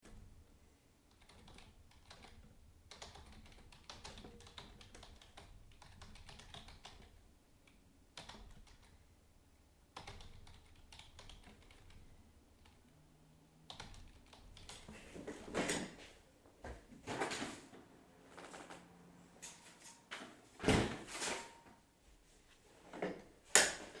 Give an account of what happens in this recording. I was typing on the keyboard. Then I stood up from the chair and opened the balcony door. Afterwards closed it again and sat down.